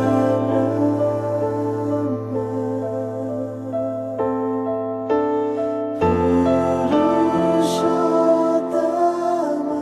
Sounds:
music, mantra

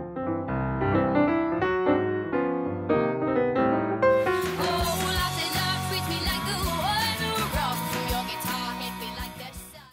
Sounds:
music

